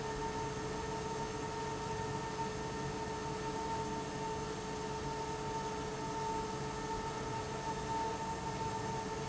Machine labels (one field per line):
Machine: fan